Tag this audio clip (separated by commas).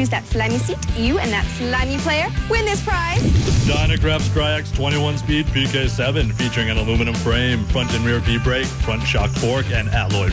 Speech, Music